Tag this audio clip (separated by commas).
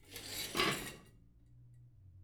dishes, pots and pans, home sounds